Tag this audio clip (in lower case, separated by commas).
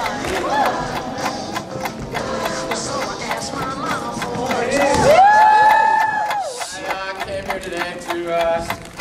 tick, tick-tock, speech, music